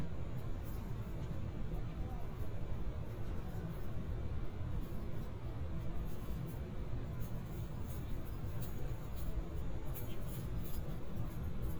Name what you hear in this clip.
background noise